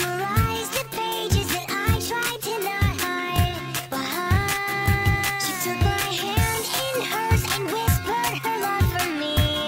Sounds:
Music

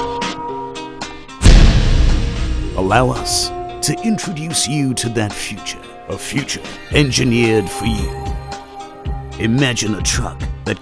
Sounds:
Speech, Music

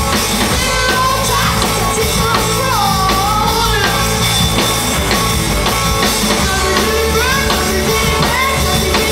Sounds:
Rock and roll, Music

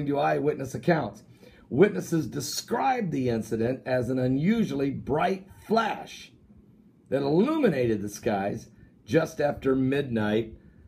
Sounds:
Speech

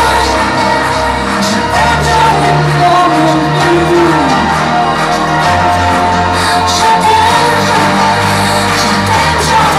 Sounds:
Music

